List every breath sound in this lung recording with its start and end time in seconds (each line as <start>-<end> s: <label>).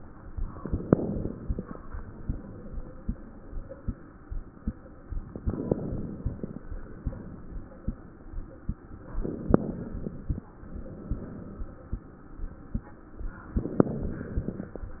0.63-1.69 s: inhalation
0.63-1.69 s: crackles
5.41-6.57 s: inhalation
5.41-6.57 s: crackles
9.18-10.34 s: inhalation
9.18-10.34 s: crackles
13.57-14.72 s: inhalation
13.57-14.72 s: crackles